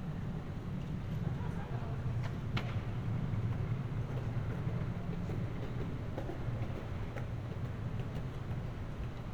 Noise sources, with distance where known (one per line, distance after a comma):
person or small group talking, far